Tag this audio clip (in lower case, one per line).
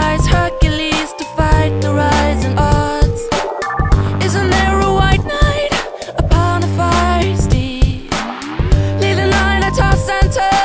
music